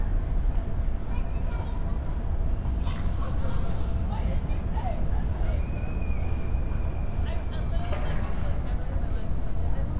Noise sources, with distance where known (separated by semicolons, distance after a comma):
person or small group talking, far